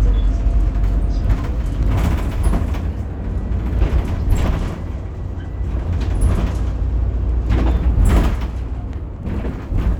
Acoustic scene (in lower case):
bus